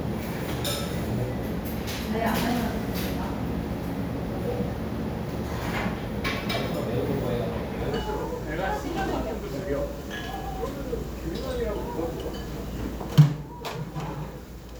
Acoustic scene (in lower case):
restaurant